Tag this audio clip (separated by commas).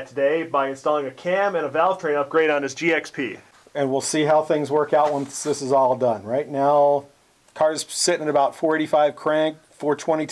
Speech